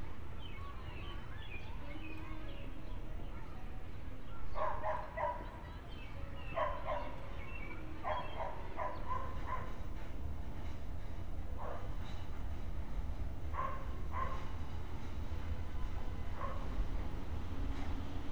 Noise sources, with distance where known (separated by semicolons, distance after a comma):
dog barking or whining